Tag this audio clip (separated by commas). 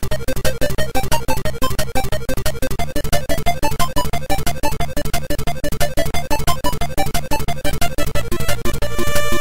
Music